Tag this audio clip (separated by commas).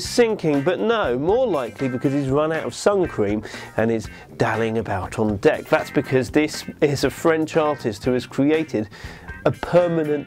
Music, Speech